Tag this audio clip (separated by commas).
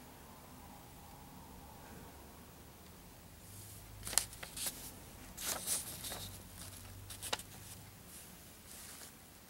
inside a small room, Silence